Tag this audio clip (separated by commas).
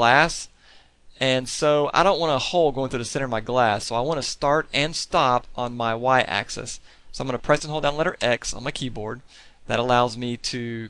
Speech